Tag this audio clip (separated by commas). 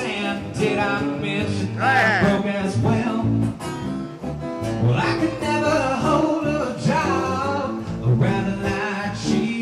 Independent music, Music